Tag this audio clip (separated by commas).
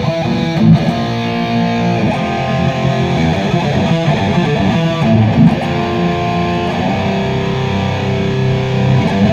Electric guitar, Plucked string instrument, playing bass guitar, Musical instrument, Bass guitar, Strum, Guitar, Music